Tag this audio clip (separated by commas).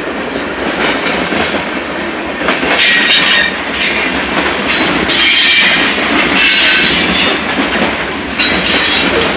railroad car